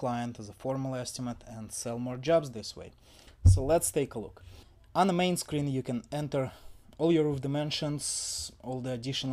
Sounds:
speech

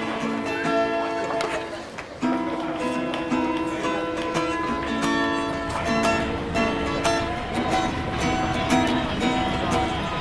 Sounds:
music, speech

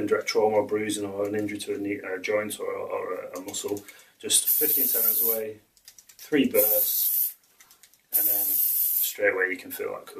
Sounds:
spray, speech

